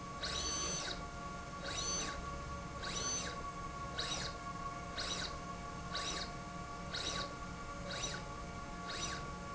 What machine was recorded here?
slide rail